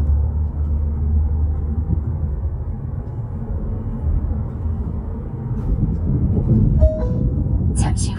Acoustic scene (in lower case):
car